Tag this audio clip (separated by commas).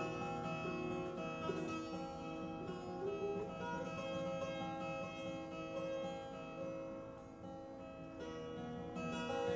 Music